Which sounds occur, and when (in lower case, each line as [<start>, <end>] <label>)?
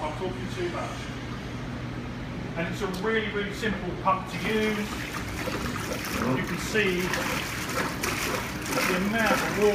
[0.00, 1.09] male speech
[0.00, 9.74] mechanisms
[2.54, 3.74] male speech
[2.91, 3.03] generic impact sounds
[4.08, 4.84] male speech
[4.26, 9.74] pump (liquid)
[6.05, 7.11] male speech
[8.72, 9.74] male speech